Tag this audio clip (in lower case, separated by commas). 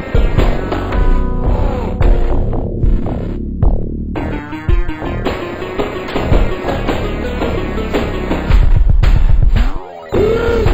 music, theme music